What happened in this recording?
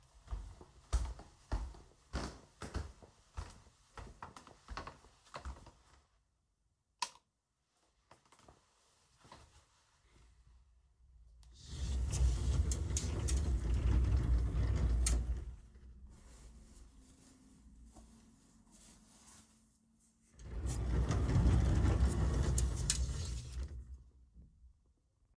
I walked into the bedroom, turned on the light, and opened a drawer to take out some clothes. Then I closed the drawer.